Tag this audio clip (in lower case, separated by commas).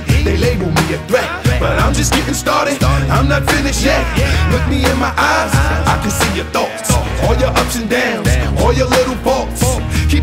music